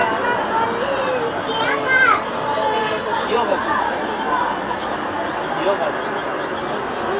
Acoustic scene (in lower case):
park